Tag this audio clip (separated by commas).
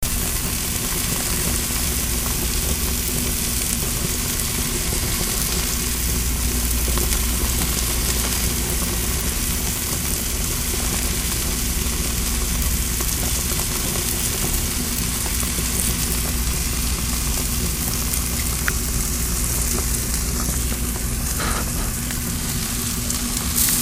home sounds, Frying (food)